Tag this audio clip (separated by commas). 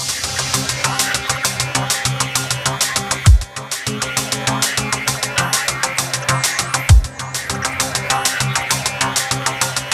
Electronic dance music, Music, Dubstep